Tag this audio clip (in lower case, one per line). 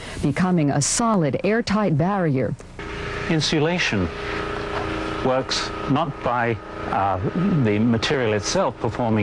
speech